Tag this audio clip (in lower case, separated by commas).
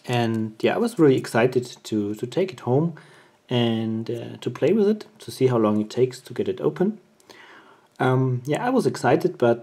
speech